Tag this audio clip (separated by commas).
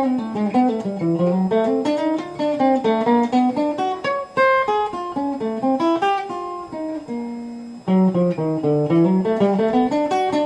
Musical instrument, Mandolin, Music, Guitar, Plucked string instrument, Strum